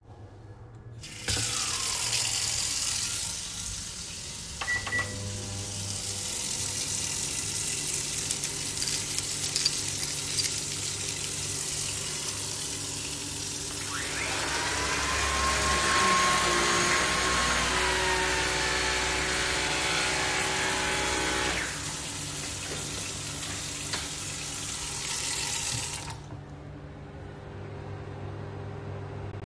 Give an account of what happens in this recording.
The tap water was running while I started the microwave and searched for my key, also the vacuum cleaner started